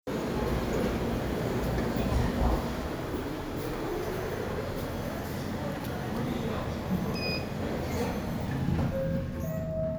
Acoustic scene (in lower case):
elevator